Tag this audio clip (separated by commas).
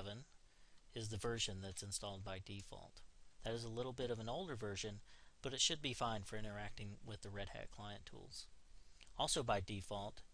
Speech